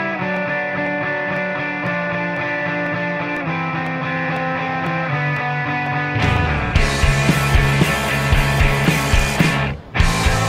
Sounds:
Music, Grunge

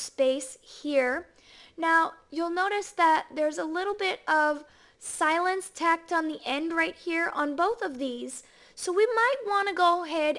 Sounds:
Speech

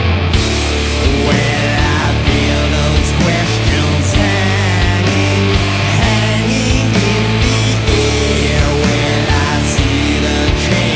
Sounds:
Music

